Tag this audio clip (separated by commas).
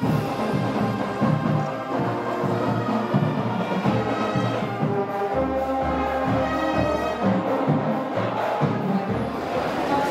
people marching